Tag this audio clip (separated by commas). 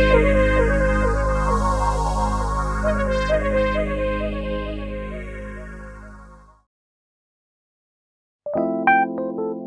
Music